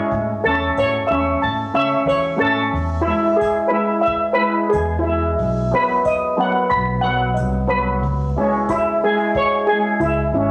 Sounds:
inside a small room, steelpan, musical instrument, music, percussion

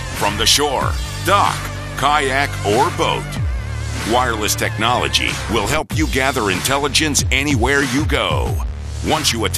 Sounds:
speech, music

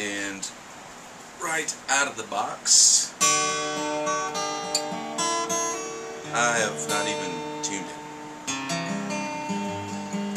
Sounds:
speech, slide guitar, music

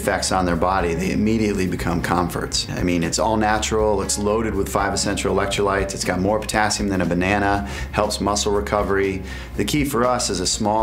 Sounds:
music, speech

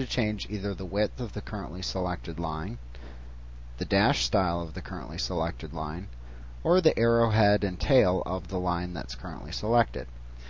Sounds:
speech

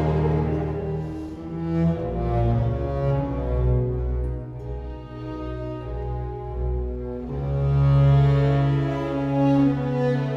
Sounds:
cello, music

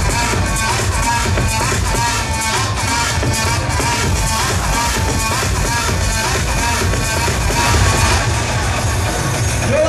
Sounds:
techno, speech, electronic music, music

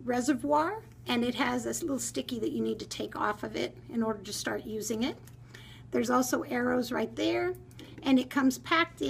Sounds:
speech

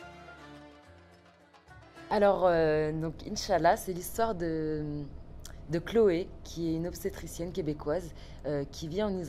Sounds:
speech, music

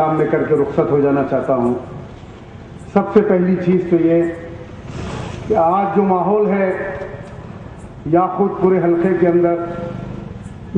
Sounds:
male speech, narration, speech

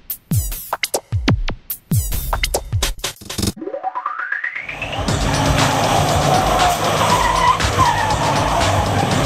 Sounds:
vehicle, motor vehicle (road), music, car

